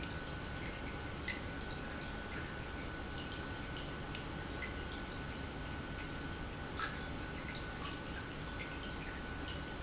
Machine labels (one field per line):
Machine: pump